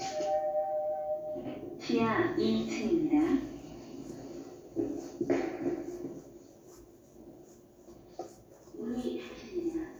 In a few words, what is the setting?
elevator